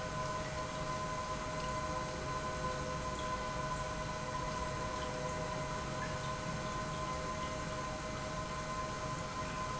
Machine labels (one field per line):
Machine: pump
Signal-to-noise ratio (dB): -6 dB